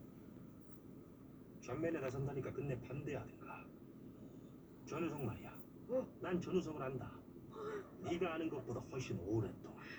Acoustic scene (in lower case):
car